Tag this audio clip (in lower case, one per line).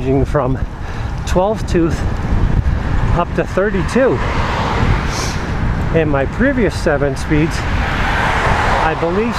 outside, urban or man-made
bicycle
outside, rural or natural
speech
vehicle